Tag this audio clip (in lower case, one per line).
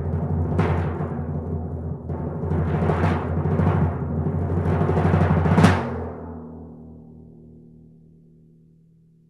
playing tympani